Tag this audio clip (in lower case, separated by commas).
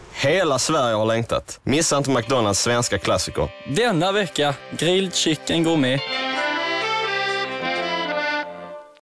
speech, music